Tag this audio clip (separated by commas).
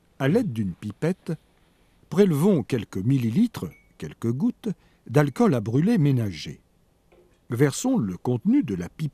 Speech